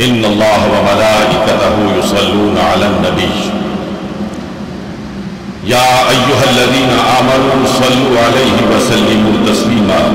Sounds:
Male speech, Narration, Speech

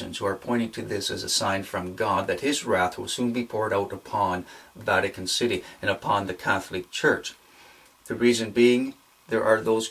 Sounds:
Speech

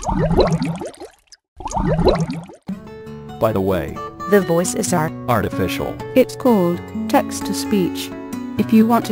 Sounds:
Music, Speech

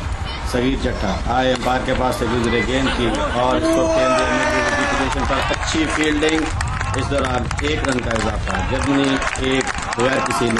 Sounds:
Speech

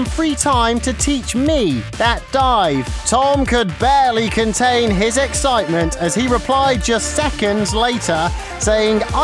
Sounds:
Speech, Music

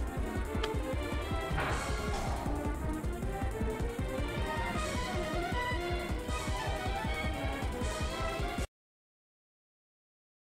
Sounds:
Music

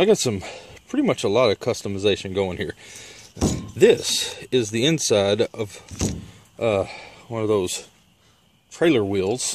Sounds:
Speech, inside a small room

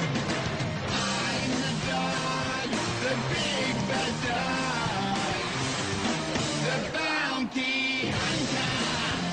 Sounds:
Music

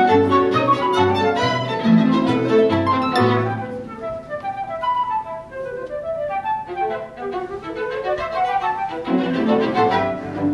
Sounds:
Music, Musical instrument, Violin, Flute, Cello

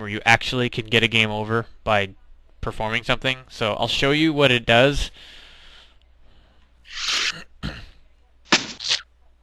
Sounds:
inside a small room, Speech

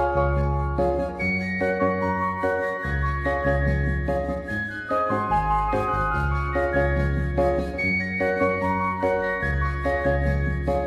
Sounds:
Music, Tender music

